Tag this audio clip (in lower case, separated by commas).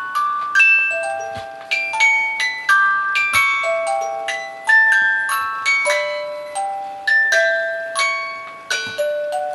chime, glockenspiel, xylophone, mallet percussion